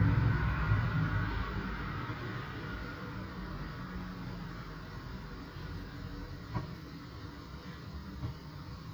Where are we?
on a street